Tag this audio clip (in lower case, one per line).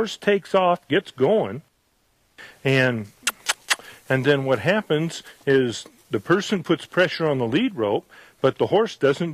speech